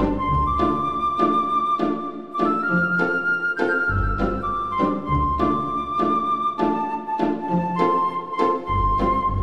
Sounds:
Music

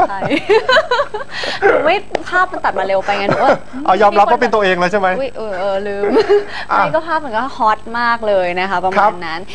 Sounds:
Speech

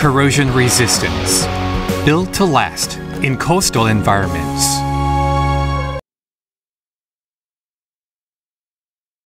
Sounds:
Speech, Music

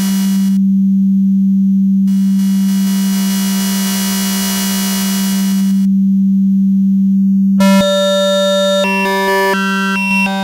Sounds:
Synthesizer

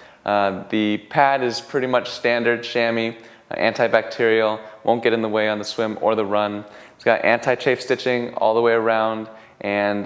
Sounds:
Speech

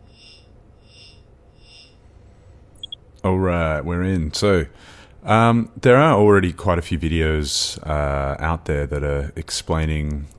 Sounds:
Speech

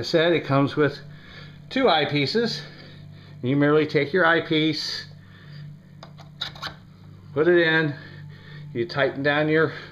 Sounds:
Pant, Speech

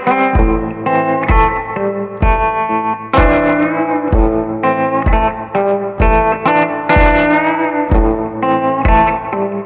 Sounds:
Music

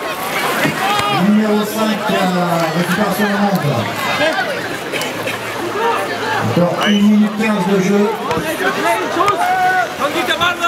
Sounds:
Water vehicle, kayak

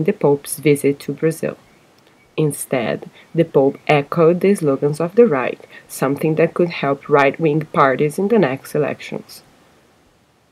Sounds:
Rustle

